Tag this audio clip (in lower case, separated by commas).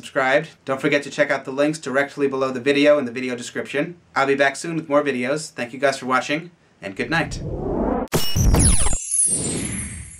music, inside a small room, speech